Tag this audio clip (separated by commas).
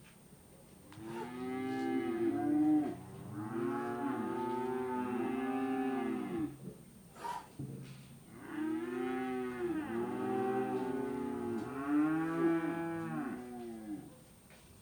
livestock, Animal